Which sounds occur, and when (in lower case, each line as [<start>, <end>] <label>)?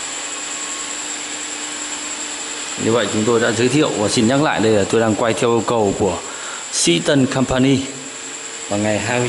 [0.00, 9.25] mechanisms
[2.69, 6.21] male speech
[4.85, 4.91] tick
[6.25, 6.60] breathing
[6.75, 7.83] male speech
[8.66, 9.25] male speech